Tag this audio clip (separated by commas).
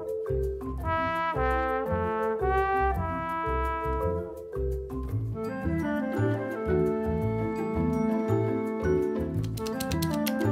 typing on typewriter